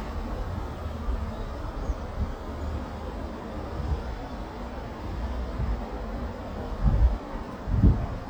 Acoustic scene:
residential area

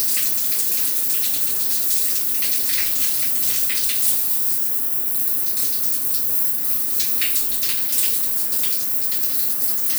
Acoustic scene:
restroom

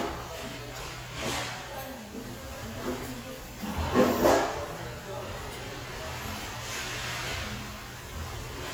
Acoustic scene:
restaurant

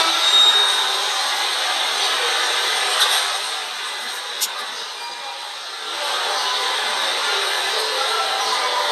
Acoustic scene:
subway station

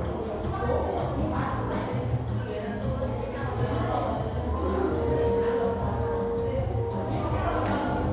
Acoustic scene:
crowded indoor space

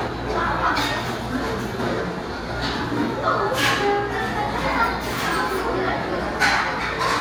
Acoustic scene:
restaurant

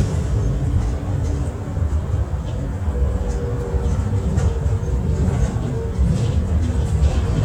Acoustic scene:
bus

